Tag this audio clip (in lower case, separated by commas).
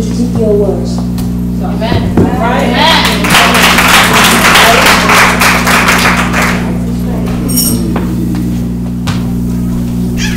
speech